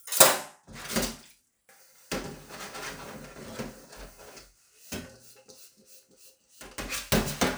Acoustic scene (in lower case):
kitchen